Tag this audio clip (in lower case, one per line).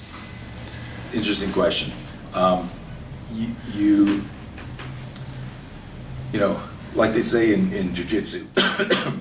speech